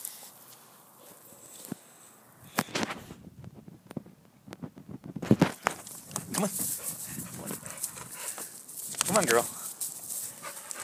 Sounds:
Speech

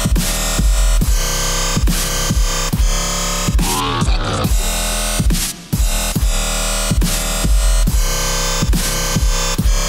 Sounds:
Electronic music, Dubstep, Music

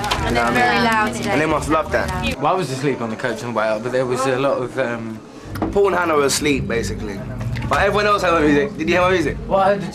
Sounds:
Speech

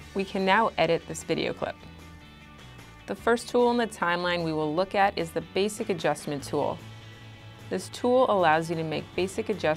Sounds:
Speech, Music

